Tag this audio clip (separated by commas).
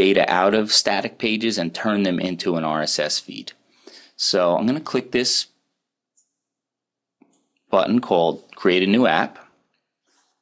Speech